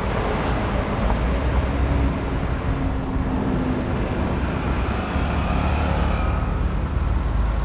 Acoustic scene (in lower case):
street